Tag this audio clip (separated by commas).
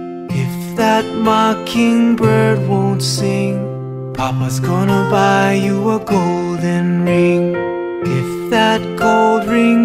Music